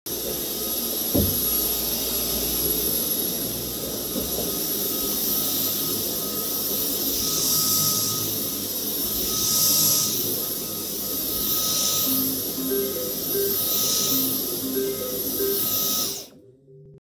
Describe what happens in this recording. I was vacuum cleaning the floor while someone called me.